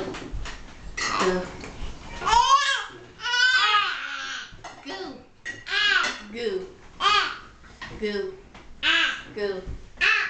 Clinking and thumping are ongoing, babies are vocalizing, and an adult female is speaking